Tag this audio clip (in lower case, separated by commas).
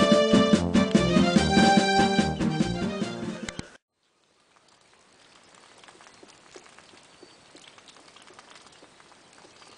bird, music